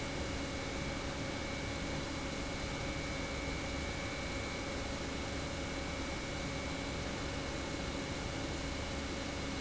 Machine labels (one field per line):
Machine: pump